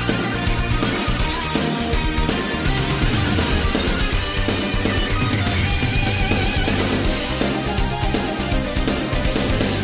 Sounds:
Music

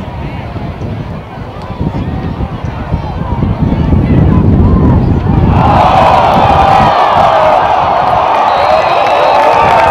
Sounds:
Speech

